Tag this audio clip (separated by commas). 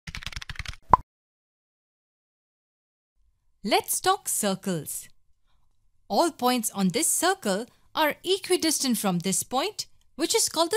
Speech